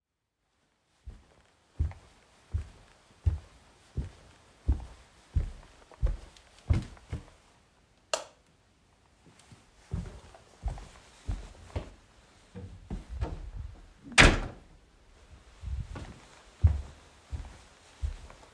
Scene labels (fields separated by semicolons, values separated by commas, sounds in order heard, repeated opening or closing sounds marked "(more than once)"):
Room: kitchen, living room; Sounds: footsteps, light switch, door